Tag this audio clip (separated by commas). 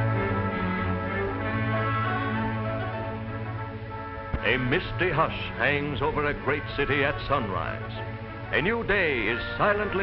Male singing, Speech, Music